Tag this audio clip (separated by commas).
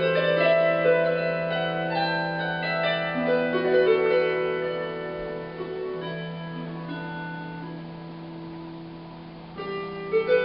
Harp, Pizzicato